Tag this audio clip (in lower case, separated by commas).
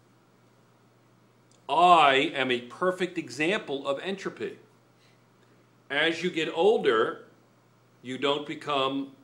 inside a small room, speech